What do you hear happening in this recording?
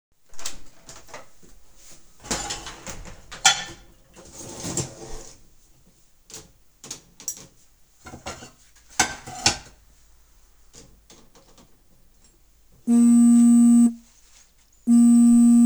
I opened the dishwasher and started putting dishes in when my phone started to ring.